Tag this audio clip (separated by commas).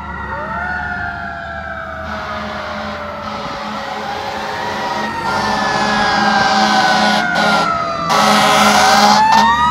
fire truck siren